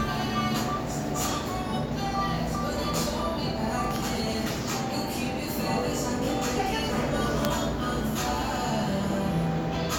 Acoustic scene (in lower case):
cafe